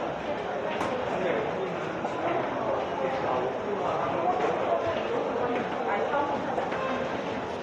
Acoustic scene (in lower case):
crowded indoor space